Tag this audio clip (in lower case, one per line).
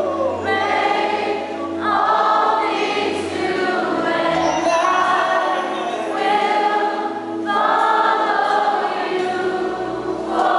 singing
music
gospel music